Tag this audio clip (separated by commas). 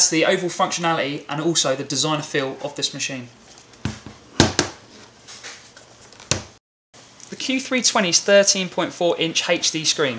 Speech